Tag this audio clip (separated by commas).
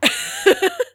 Human voice, Laughter